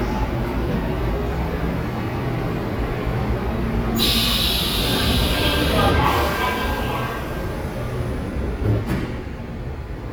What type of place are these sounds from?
subway station